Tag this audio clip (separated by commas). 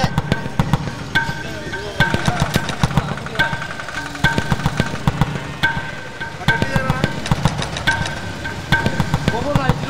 Speech